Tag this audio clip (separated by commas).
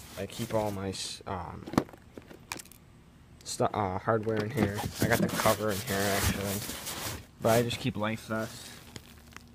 Speech